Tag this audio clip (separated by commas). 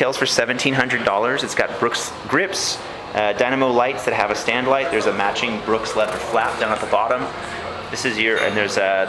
Speech